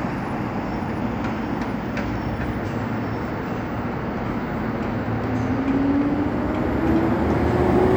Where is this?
on a street